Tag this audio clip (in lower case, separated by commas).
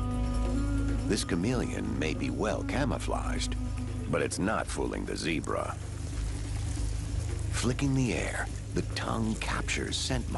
music, speech, outside, rural or natural